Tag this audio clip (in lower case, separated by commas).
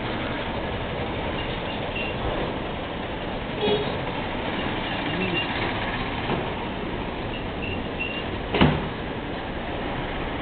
truck, vehicle